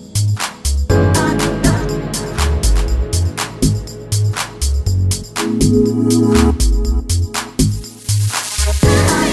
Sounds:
Electronica, Music

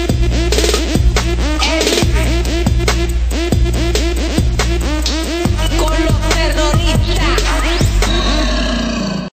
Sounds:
Music

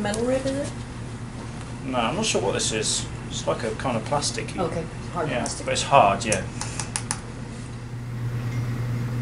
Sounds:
inside a small room, Speech

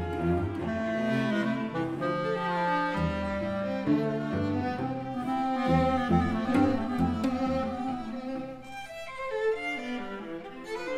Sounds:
Bowed string instrument, Cello, Violin, Clarinet, Classical music, String section, Musical instrument, Music

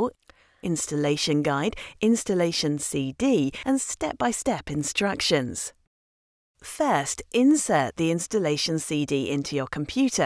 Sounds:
Speech

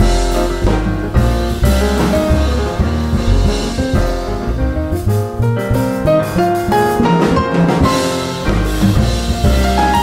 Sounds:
Jazz, Keyboard (musical), Music, Piano, Musical instrument

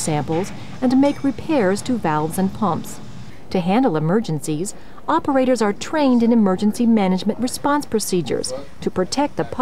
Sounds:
Speech

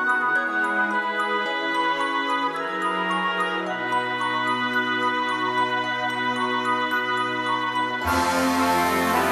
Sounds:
Christmas music, Music

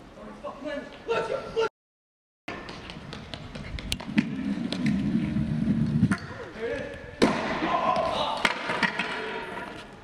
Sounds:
skateboarding

